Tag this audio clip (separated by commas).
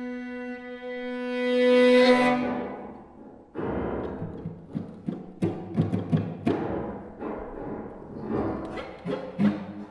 Cello, playing cello, Music, Violin, Musical instrument, Piano, Bowed string instrument